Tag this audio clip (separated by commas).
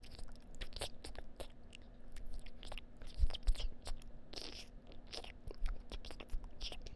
Chewing